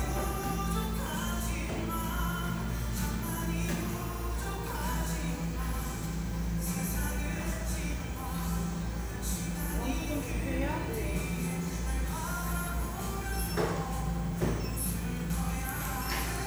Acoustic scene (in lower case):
cafe